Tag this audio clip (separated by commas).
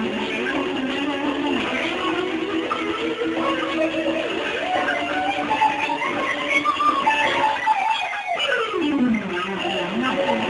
Electric guitar, Musical instrument, Strum, Music, Plucked string instrument, Guitar